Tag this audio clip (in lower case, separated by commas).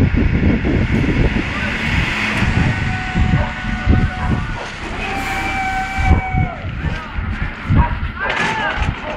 truck, vehicle, speech